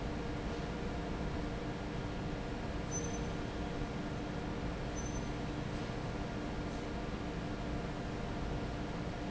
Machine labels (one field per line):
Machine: fan